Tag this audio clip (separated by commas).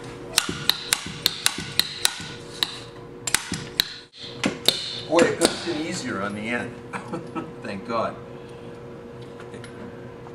Speech